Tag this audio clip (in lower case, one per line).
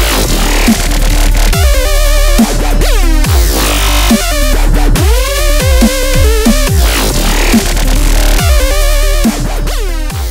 music